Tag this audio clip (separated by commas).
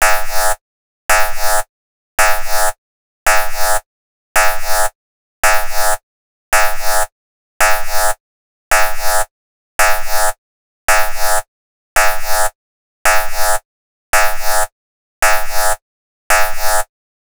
Alarm